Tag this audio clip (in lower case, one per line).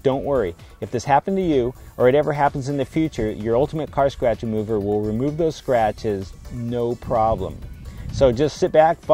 music
speech